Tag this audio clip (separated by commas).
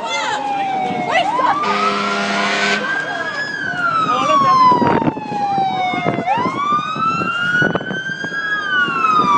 Speech